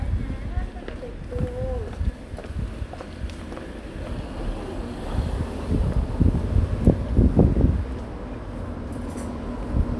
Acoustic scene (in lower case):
residential area